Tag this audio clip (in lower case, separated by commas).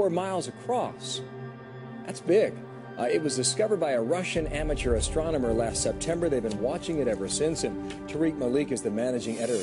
speech, musical instrument, music